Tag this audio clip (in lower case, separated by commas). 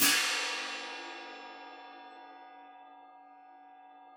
music, hi-hat, musical instrument, cymbal, percussion